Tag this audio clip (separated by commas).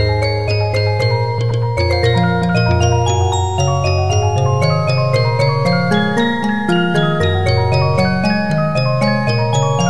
Music, Soundtrack music